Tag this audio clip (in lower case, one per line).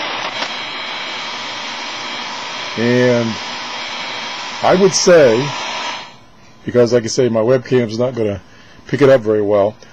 radio